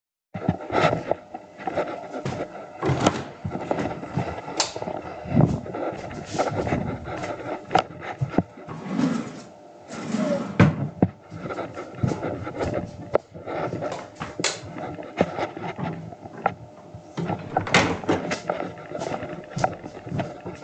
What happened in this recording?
I walk from the living_room in to the bedroom and open the Bedroom door. I switch on the Light and walk to the Drawer to grab something. At last i close the Drawer switch of the Light and leave the room.